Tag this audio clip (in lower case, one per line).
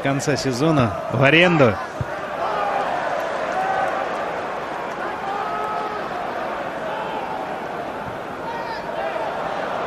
speech